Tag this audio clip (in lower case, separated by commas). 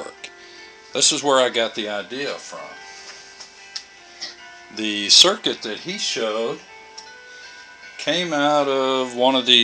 music, speech